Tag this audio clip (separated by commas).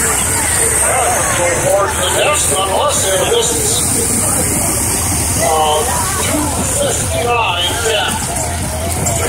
Speech, Vehicle